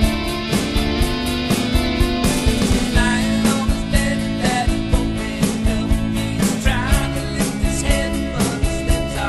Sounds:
music

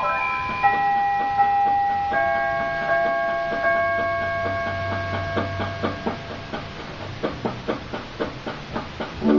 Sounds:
tubular bells

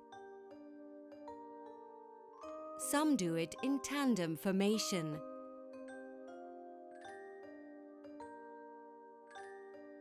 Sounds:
music
speech

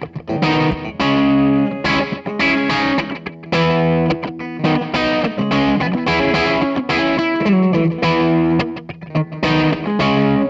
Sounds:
music

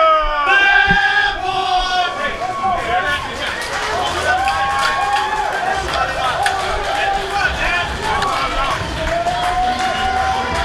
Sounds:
speech

